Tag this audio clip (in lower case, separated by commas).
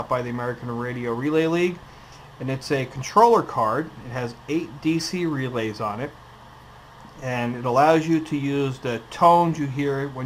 speech